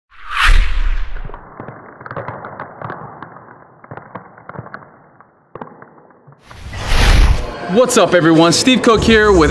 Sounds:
Speech, outside, urban or man-made

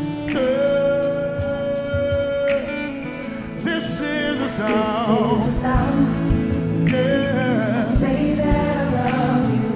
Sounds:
Music, Roll

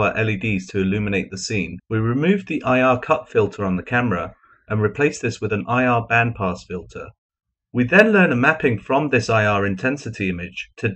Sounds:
Speech

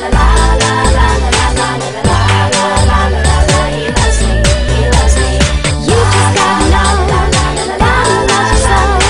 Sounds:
inside a large room or hall, Music, Pop music

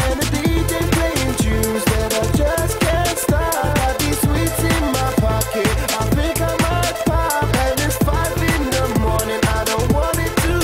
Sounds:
Soundtrack music, Music

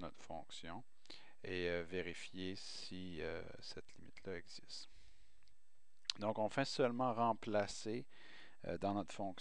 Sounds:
Speech

